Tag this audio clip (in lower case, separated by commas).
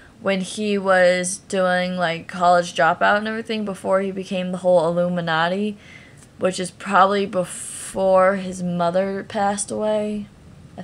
speech